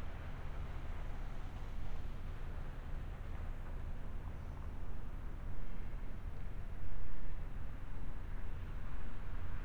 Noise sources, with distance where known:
background noise

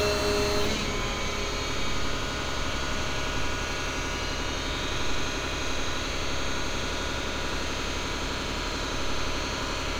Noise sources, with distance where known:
large rotating saw, near

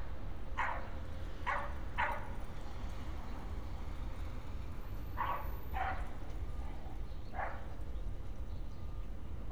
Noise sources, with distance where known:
dog barking or whining, near

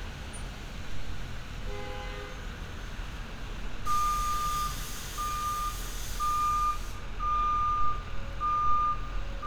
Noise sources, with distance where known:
reverse beeper, near

